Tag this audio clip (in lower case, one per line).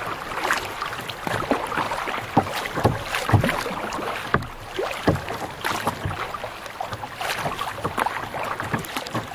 kayak
boat
rowboat